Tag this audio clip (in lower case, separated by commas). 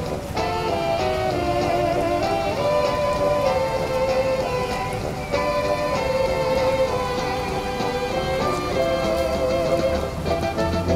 music